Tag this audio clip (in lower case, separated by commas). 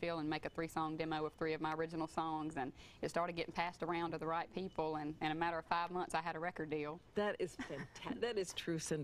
speech